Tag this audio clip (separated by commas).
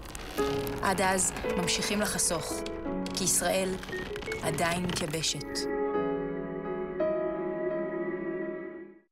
Music, Speech